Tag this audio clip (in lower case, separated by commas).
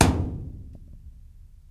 thump